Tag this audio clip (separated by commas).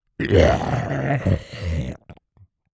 Human voice